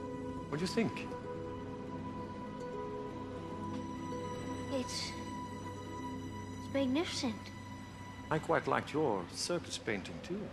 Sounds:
Music, Speech

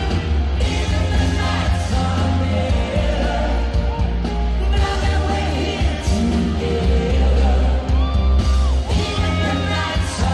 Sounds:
Rock and roll, Singing, Music

